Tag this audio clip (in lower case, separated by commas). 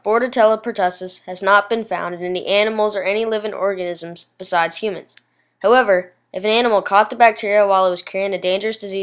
speech